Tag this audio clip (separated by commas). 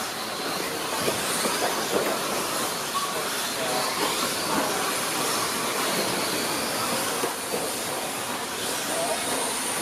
Speech, Vehicle, Car